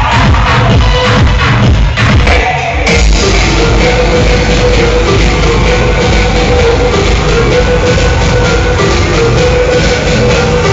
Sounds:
Music, Electronica

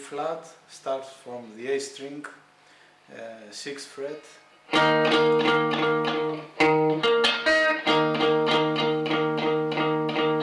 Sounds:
Plucked string instrument, Music, Strum, Guitar, Electric guitar, Musical instrument, Speech

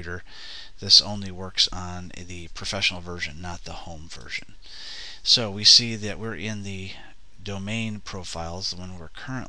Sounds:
Speech

